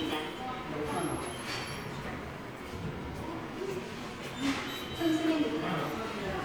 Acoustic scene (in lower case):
subway station